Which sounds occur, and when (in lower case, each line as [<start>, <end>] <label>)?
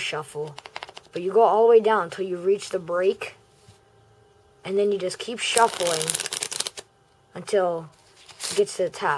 [0.00, 9.15] mechanisms
[5.32, 6.79] shuffling cards